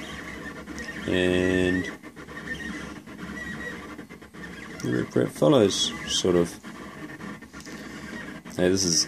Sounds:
speech, printer

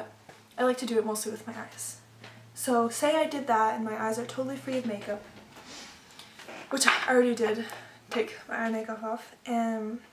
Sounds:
inside a small room, speech

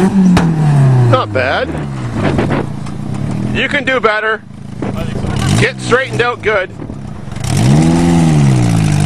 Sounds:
car, vehicle, speech

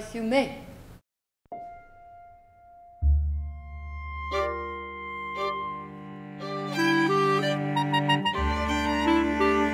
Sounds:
speech, music, harpsichord

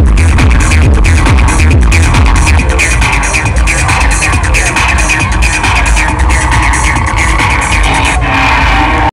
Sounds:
music, techno, electronic music

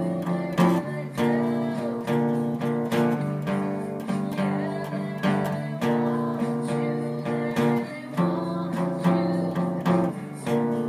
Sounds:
acoustic guitar, musical instrument, plucked string instrument, guitar, strum, music

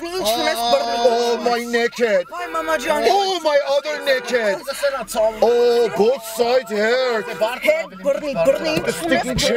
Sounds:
speech

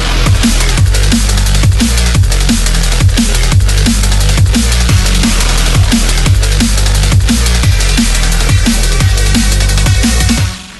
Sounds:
music

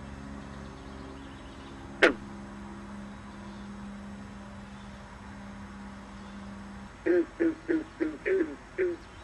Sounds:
frog

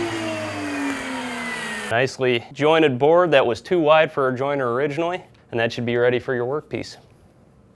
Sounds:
planing timber

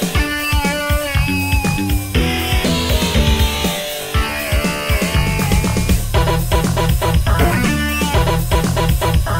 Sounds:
music

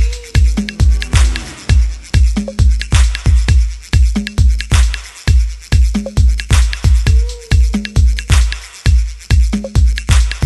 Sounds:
drum, music, musical instrument

